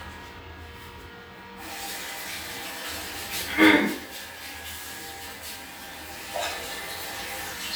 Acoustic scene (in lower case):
restroom